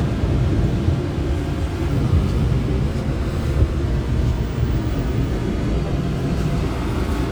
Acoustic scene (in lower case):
subway train